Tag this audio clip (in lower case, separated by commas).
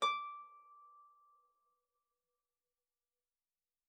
music, harp, musical instrument